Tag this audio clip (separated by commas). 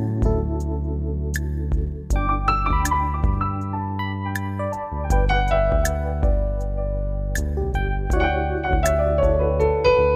Music